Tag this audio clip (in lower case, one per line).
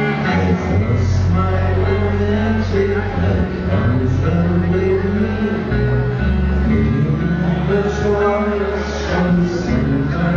music
speech